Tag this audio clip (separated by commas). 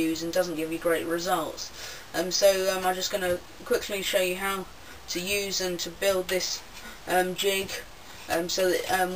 Speech